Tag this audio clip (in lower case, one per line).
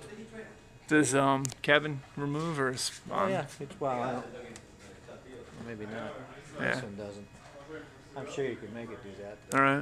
speech